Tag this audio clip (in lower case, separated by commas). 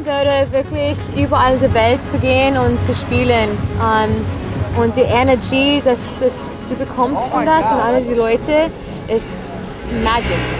music, speech